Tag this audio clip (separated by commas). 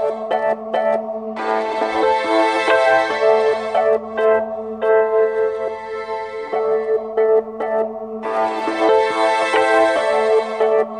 Ambient music